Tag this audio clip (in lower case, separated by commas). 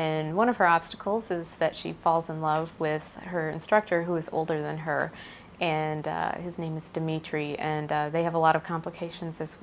speech